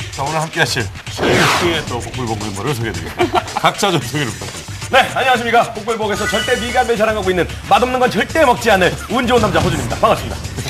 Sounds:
speech, music

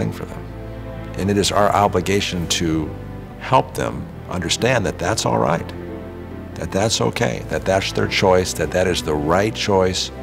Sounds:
music, speech

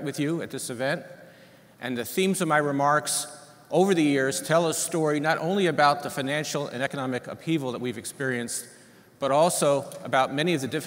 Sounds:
man speaking, speech, monologue

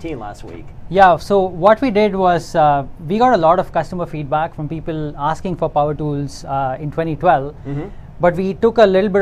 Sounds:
speech

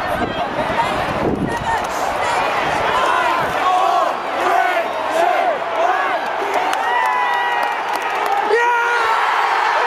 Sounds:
speech

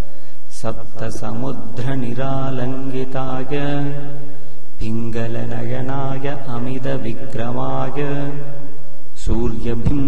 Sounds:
mantra

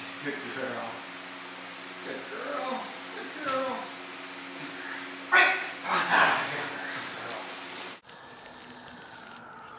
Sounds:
dog, speech, animal

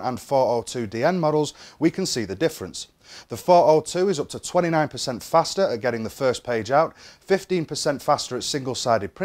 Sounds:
speech

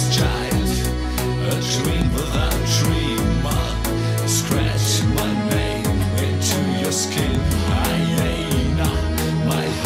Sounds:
exciting music, music

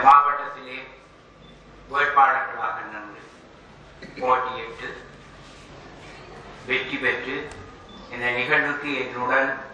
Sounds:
speech, monologue, male speech

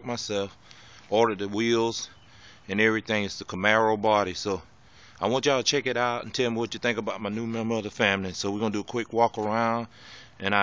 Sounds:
speech

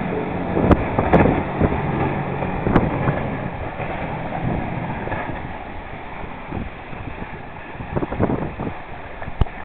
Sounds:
vehicle, speedboat, water vehicle

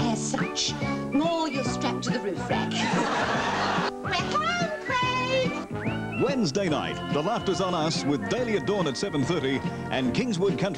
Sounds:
laughter

